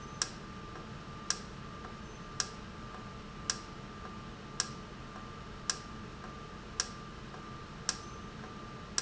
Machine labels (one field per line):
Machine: valve